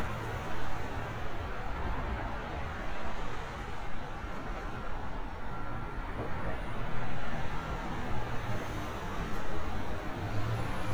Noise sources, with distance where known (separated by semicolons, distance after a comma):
medium-sounding engine, far